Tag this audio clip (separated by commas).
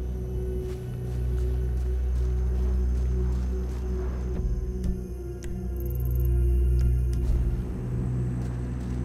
outside, rural or natural, Music